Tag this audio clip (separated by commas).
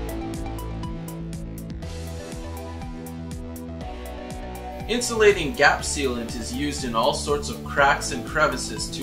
Speech, Music